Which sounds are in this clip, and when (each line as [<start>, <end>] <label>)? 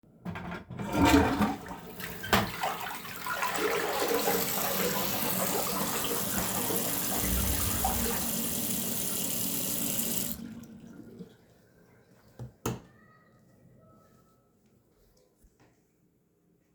[0.24, 8.46] toilet flushing
[0.66, 8.54] light switch
[3.88, 10.46] running water
[12.33, 12.88] light switch